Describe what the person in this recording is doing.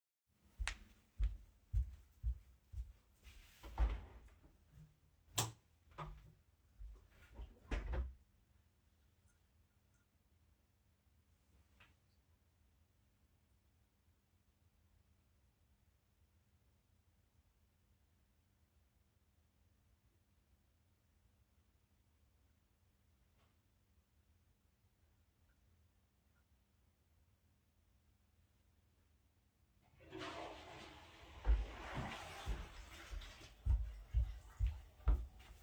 I move to the bathroom. I open the door. I turn the light on(not hearable). I sit down. I pee. I flush. I go out and stop recording. In the background another person is working on a laptop (not hearable).